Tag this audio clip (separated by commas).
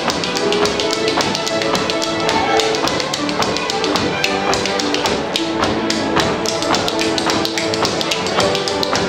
Orchestra, Tap, Music